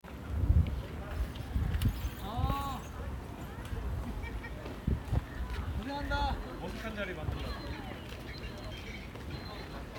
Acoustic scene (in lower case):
park